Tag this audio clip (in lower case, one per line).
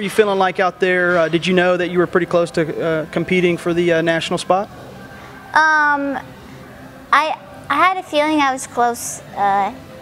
speech